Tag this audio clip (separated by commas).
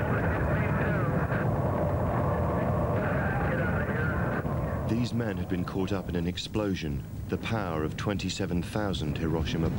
Speech